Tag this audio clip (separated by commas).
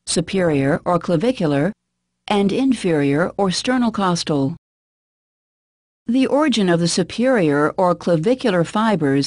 Speech